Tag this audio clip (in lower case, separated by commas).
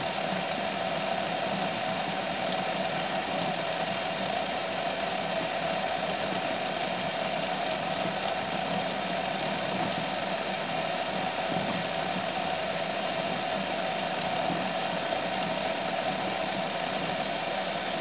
home sounds, water tap